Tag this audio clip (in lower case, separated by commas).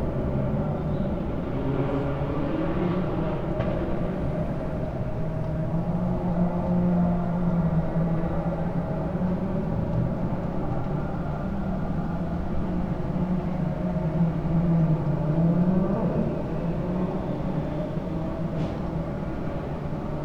motor vehicle (road), car, vehicle, auto racing